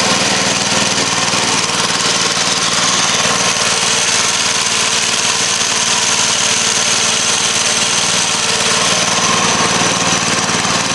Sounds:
medium engine (mid frequency), engine, idling

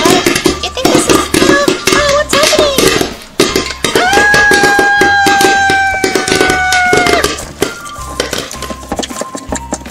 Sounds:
music, inside a small room, speech

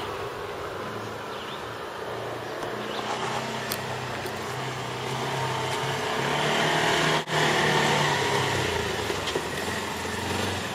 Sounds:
outside, rural or natural, vehicle

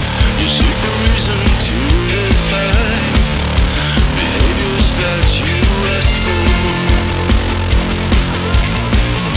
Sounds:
funk, music, jazz

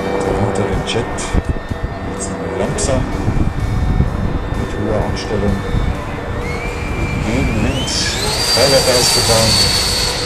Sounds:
music, fixed-wing aircraft, vehicle, aircraft, speech, outside, rural or natural

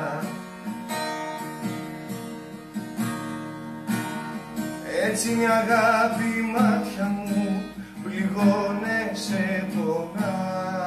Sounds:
musical instrument, strum, music, acoustic guitar, guitar, plucked string instrument

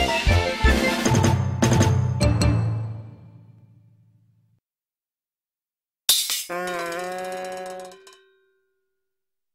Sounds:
music

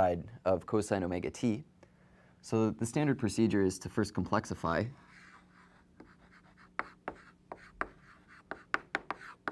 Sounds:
writing

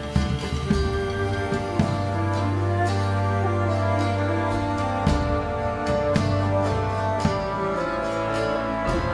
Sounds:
music

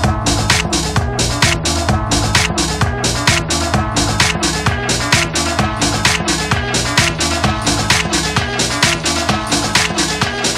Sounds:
disco, music

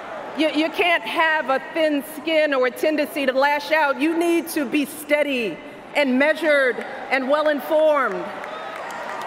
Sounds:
woman speaking

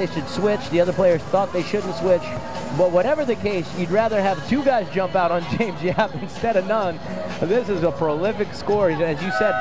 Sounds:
music, speech

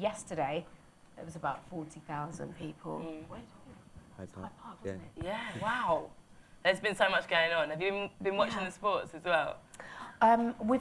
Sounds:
inside a small room, speech

